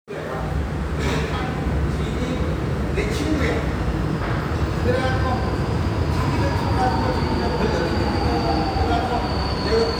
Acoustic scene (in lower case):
subway station